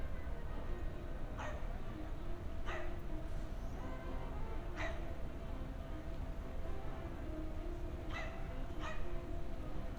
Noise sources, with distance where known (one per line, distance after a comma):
music from an unclear source
dog barking or whining, near